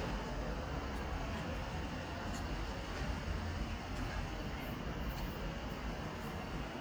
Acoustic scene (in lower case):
residential area